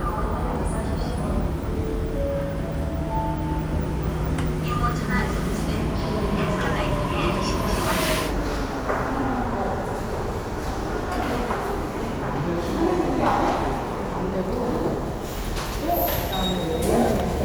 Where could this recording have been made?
in a subway station